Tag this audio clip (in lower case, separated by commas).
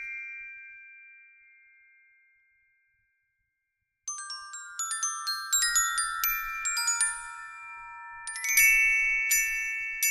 playing glockenspiel